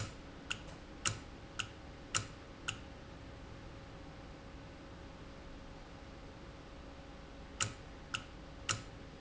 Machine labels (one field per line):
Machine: valve